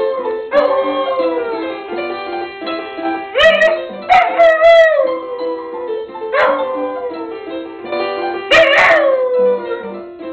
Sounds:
inside a small room, Domestic animals, Animal, Music, Dog

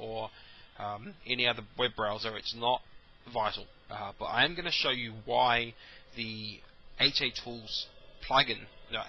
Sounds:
Speech

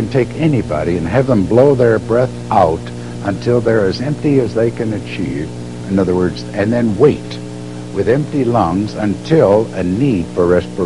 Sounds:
Speech

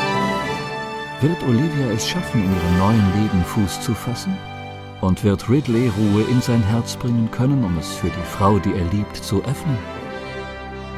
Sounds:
Speech, Music

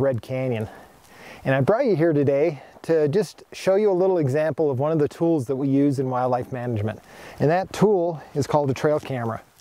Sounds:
Speech

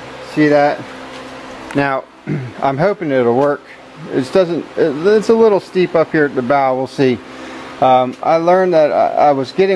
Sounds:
Speech

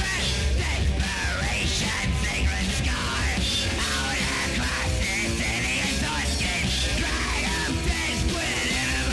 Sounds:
Music

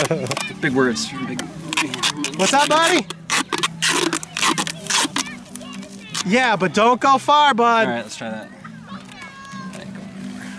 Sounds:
Music, outside, rural or natural, Speech

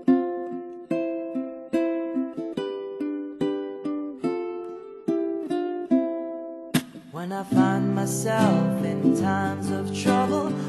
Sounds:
playing ukulele

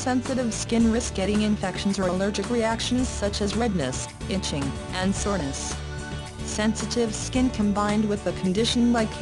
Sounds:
Speech, Music

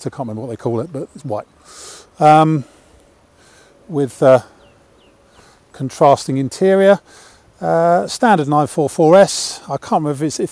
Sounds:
Speech

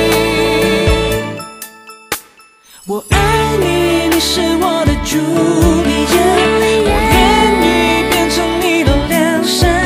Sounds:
Music

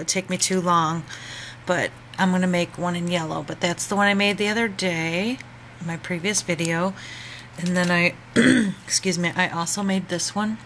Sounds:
Speech

